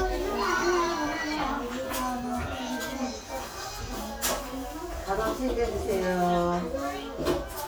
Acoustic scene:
crowded indoor space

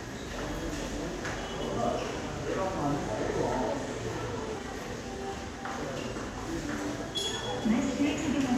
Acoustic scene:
subway station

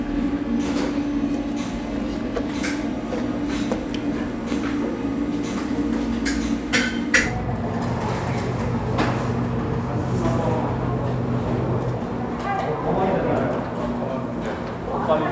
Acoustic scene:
cafe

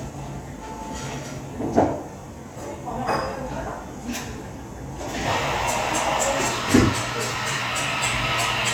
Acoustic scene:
cafe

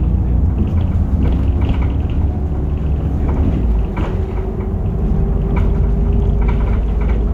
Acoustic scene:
bus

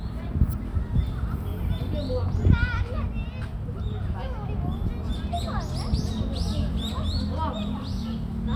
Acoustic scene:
park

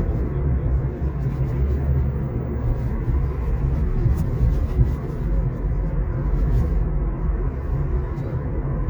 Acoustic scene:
car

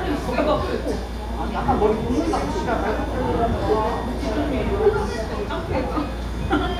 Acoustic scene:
cafe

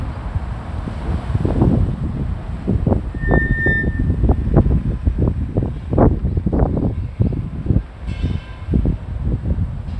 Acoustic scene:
street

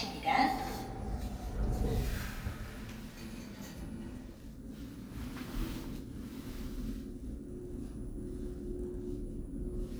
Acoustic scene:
elevator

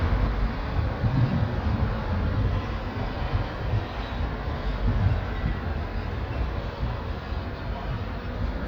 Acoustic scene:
street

